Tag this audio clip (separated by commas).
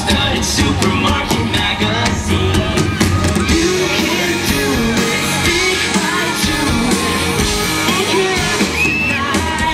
Male singing, Music